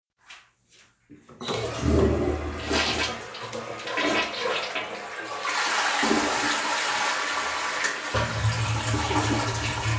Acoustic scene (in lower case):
restroom